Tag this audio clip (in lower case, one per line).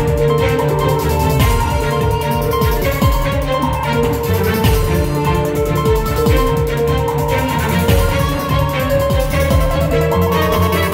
music